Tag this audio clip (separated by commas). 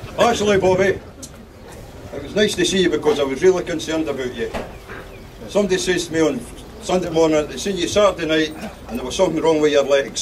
Speech, monologue, man speaking